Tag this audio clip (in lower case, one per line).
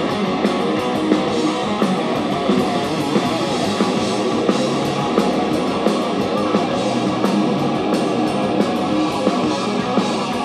guitar
bass guitar
strum
plucked string instrument
music
musical instrument
acoustic guitar